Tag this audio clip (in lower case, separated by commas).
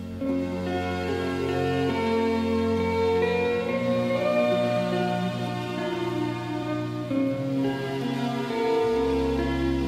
musical instrument, music